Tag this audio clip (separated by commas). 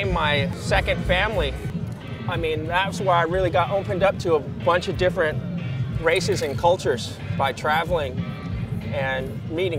Music, Speech